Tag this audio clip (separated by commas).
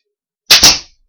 Tools